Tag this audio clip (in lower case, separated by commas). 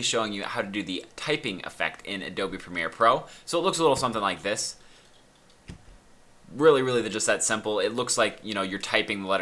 typing on typewriter